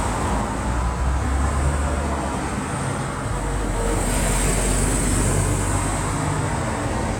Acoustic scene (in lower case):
street